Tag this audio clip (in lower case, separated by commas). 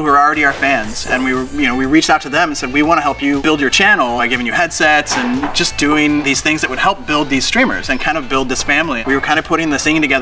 music, speech